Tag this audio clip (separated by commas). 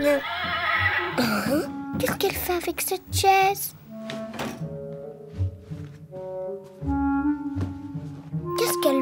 kid speaking, Music, Speech